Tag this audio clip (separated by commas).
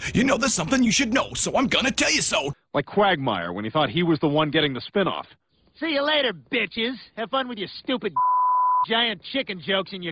Speech